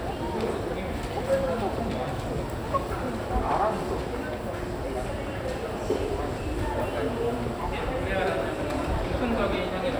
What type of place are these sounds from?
crowded indoor space